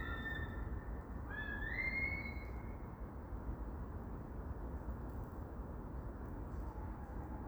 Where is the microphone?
in a park